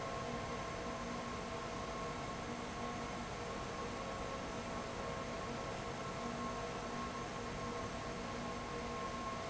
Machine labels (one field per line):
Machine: fan